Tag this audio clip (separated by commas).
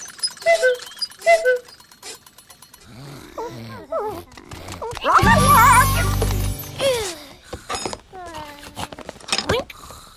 Music, Speech